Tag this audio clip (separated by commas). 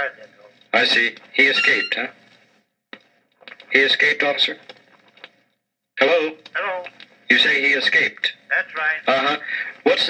Speech